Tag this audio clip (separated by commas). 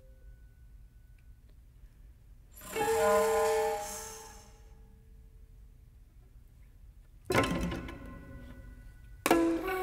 Music